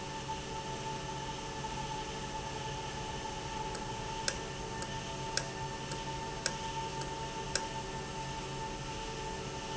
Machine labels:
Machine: valve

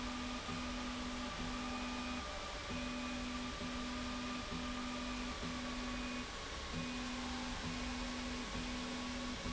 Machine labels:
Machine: slide rail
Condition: normal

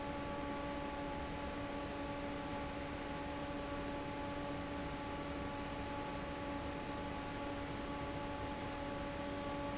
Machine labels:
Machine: fan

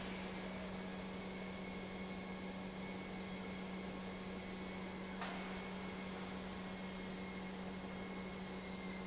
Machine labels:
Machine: pump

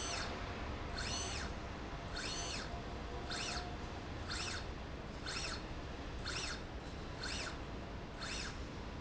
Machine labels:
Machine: slide rail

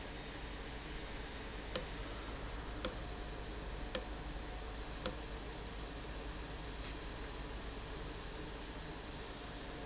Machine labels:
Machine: valve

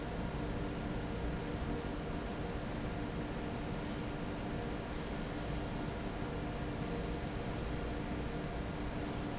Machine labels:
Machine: fan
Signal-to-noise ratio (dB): -6 dB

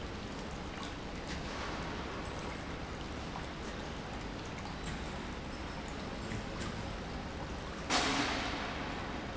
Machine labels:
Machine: pump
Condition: normal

